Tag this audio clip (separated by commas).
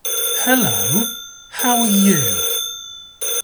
Human voice, man speaking, Speech